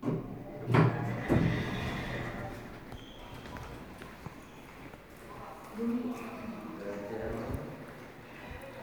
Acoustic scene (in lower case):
elevator